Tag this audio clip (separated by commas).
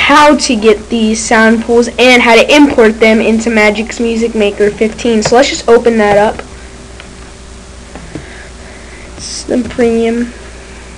Speech